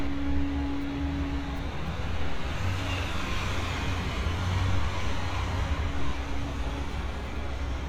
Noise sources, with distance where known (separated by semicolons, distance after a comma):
engine of unclear size, far